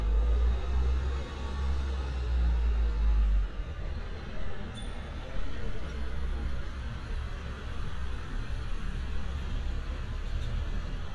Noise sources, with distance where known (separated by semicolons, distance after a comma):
large-sounding engine, near